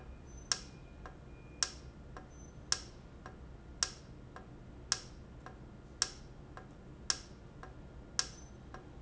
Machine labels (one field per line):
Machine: valve